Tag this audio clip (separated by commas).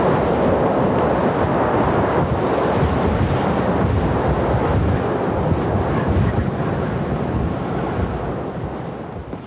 outside, rural or natural